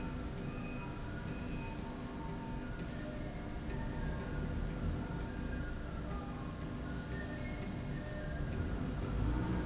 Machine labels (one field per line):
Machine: slide rail